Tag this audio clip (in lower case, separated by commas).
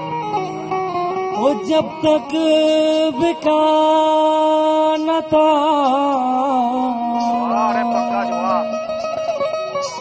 music, male singing